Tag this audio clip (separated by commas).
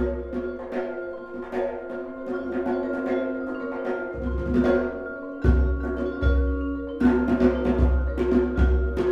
Mallet percussion, Marimba, Glockenspiel